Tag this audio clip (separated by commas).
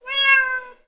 Cat, pets, Animal